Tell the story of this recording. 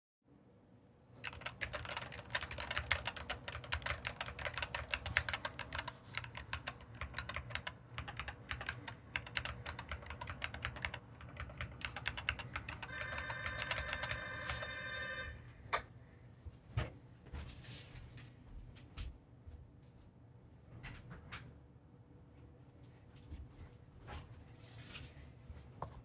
I typed on my keyboard, then someone ranged the doorbell. I got up, walked to the door and opened it. Finally i walked back into the office.